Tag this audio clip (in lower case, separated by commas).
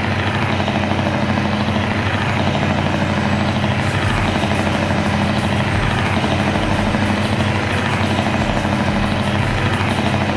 truck, music, vehicle